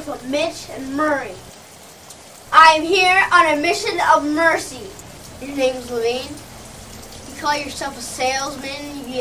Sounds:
monologue, Speech

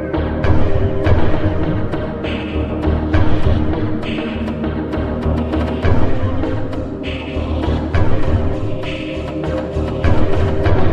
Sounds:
Background music, Music, Scary music

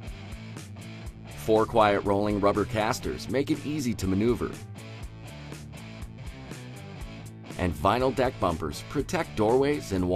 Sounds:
Music, Speech

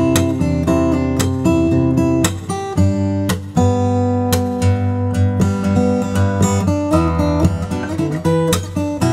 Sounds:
Musical instrument, Music, Strum, Acoustic guitar, Plucked string instrument, Guitar

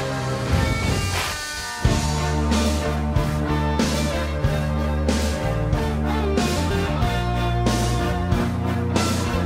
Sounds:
Soundtrack music, Music

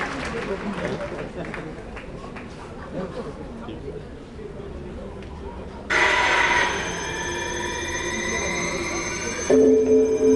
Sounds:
Techno, Music

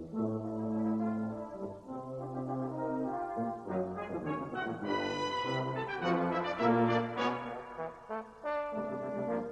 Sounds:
French horn, playing french horn, Music

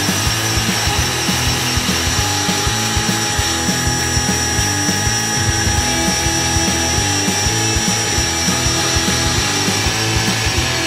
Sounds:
Tools, Music

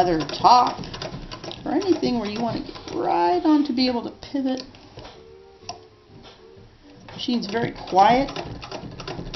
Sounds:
Sewing machine, Speech

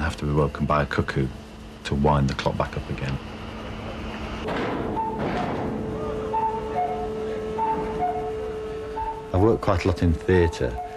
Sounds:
Speech

